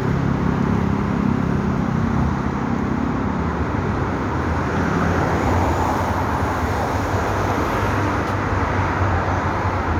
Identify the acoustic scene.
street